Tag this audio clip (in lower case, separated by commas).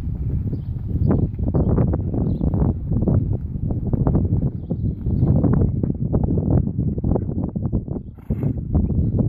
outside, urban or man-made, animal